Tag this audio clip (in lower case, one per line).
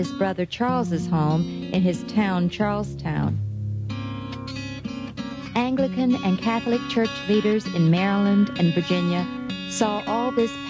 speech
music